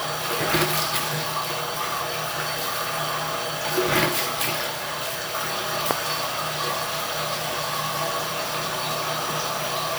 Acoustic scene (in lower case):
restroom